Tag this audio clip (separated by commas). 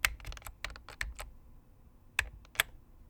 Typing, Domestic sounds